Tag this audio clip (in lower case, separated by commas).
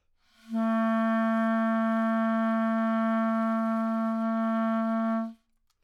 musical instrument, music, woodwind instrument